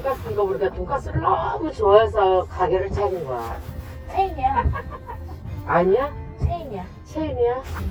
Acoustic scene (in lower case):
car